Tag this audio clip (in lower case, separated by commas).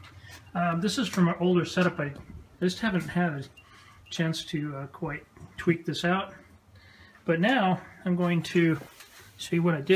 speech